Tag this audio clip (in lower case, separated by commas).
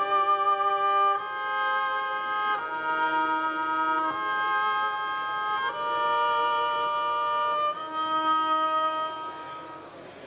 violin, musical instrument, music